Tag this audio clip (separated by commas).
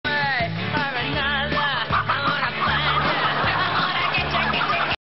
Animal, Music